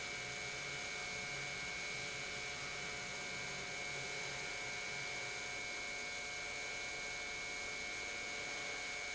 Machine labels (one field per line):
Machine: pump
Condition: normal